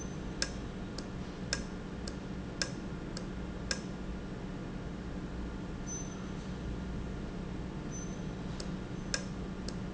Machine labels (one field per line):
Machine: valve